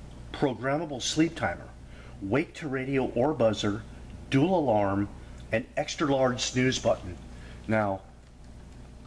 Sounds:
speech

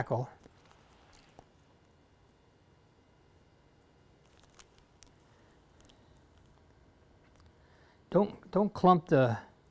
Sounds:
speech

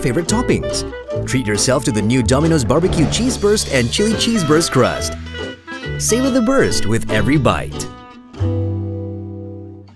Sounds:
speech, music

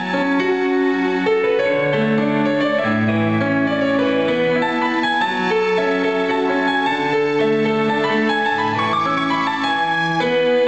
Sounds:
music

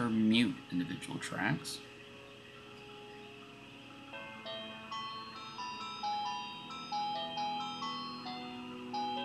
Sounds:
music, inside a small room, speech

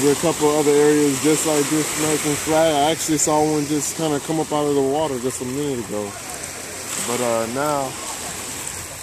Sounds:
speech, ocean

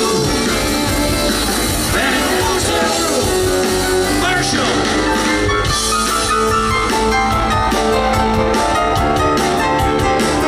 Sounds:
music, speech

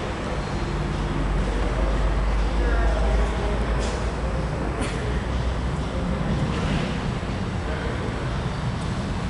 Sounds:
speech

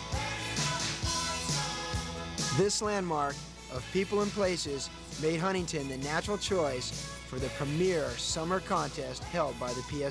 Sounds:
speech, monologue, music

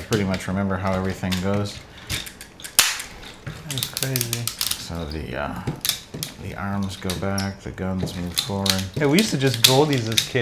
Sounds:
inside a small room, speech

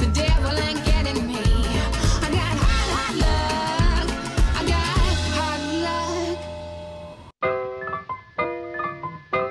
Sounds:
music, electronic music, exciting music, swing music

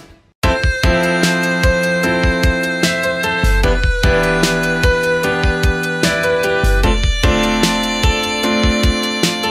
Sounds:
musical instrument, music, fiddle

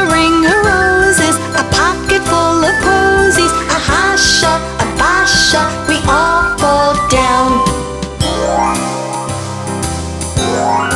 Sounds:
music for children, singing

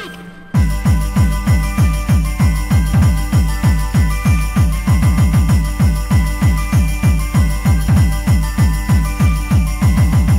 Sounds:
electronic music, techno, music

